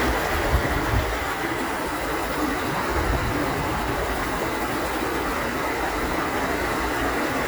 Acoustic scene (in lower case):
park